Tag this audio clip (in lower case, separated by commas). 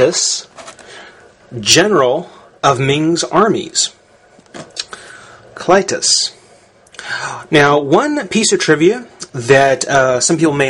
speech